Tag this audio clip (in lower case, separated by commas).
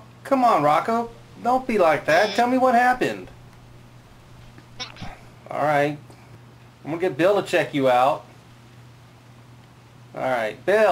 speech, cat, pets